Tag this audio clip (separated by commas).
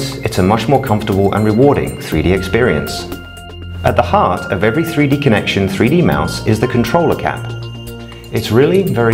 Music, Speech